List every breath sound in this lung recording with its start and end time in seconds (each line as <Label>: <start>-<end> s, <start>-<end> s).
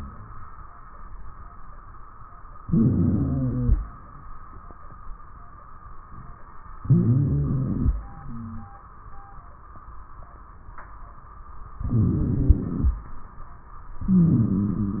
Inhalation: 2.58-3.78 s, 6.84-7.97 s, 11.83-12.97 s, 14.09-15.00 s
Wheeze: 2.58-3.78 s, 6.84-7.97 s, 11.83-12.97 s, 14.09-15.00 s